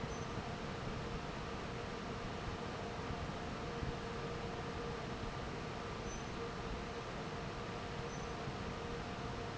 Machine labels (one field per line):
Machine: fan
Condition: normal